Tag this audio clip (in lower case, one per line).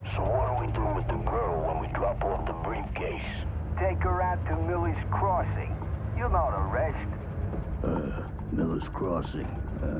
speech